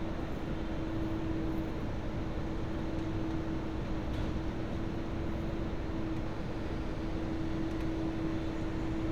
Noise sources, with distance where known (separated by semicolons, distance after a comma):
engine of unclear size